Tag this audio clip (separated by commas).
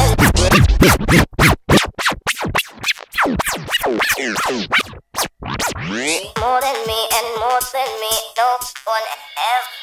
Music, Electronic music, inside a large room or hall